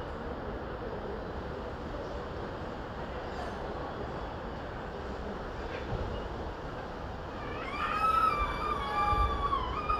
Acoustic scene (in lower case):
residential area